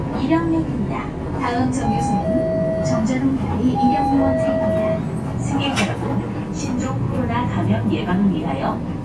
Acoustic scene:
bus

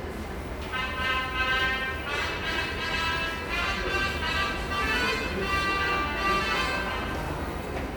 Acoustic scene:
subway station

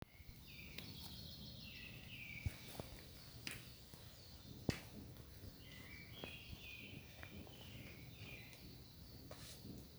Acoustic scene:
park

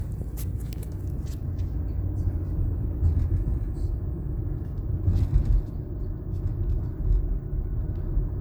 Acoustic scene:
car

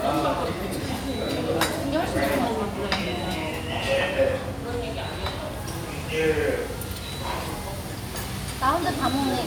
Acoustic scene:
restaurant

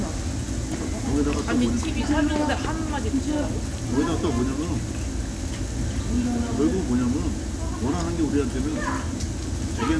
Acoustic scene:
crowded indoor space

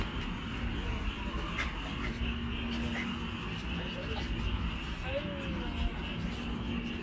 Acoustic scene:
park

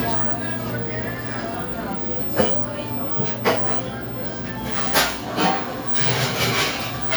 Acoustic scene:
cafe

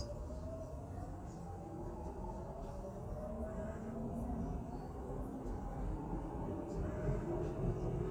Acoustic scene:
subway train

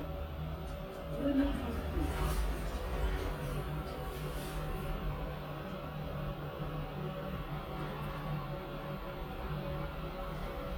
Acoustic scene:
elevator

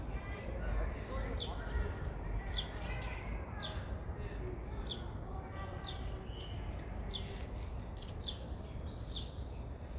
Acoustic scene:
residential area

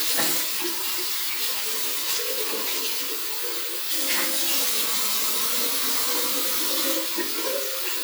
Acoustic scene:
restroom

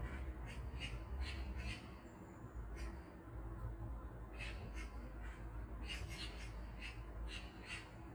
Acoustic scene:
park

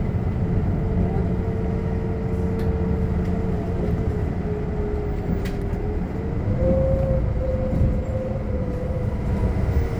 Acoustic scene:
bus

